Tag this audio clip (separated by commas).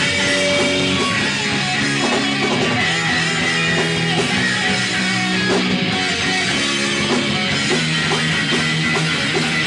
inside a large room or hall, Music